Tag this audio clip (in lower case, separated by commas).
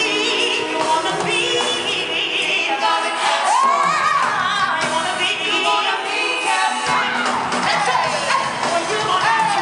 inside a large room or hall, music, singing